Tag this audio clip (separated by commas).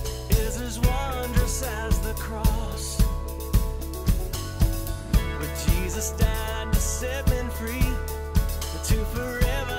Musical instrument, Drum kit, Bass drum, Music, Drum